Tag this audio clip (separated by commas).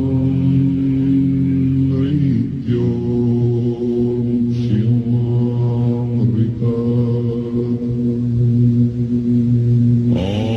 Mantra, Music, Song, Chant